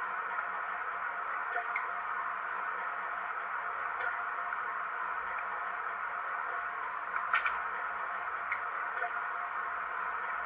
Some electrical humming and clicking